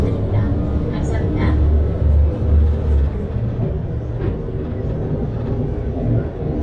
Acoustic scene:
bus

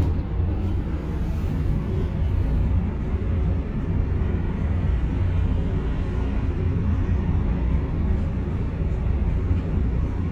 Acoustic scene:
bus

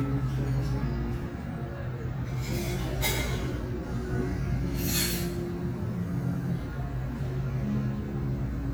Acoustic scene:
cafe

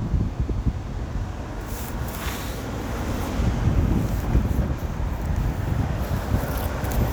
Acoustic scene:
street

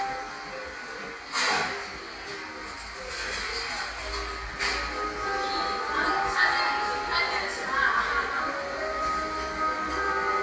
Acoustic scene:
cafe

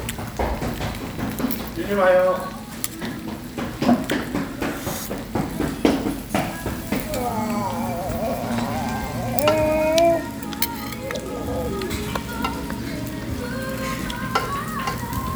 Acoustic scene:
restaurant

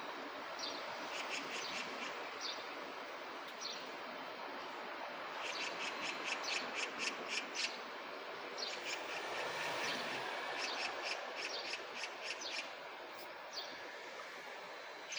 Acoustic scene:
park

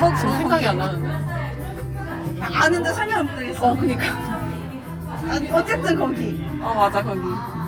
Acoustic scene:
crowded indoor space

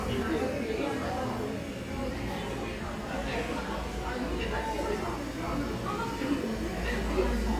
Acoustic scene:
crowded indoor space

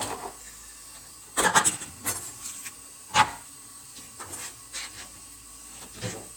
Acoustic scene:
kitchen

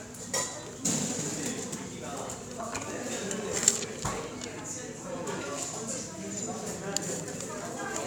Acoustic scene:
cafe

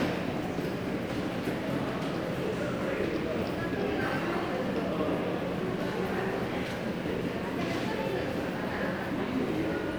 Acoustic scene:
subway station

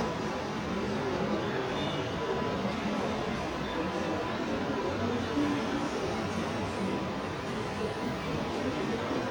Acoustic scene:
crowded indoor space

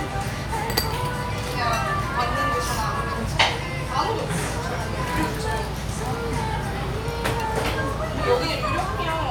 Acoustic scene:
restaurant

